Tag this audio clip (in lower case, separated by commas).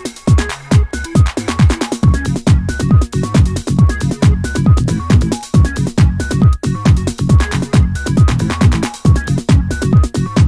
trance music